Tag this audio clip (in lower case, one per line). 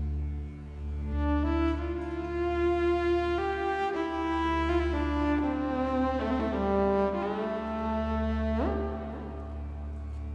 music
musical instrument
fiddle